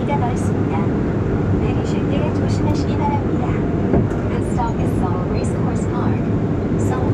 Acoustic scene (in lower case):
subway train